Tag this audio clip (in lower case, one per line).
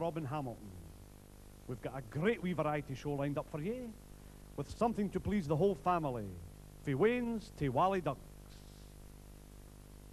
speech